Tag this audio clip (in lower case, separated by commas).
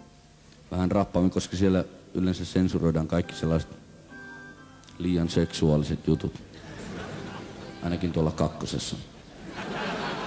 speech, music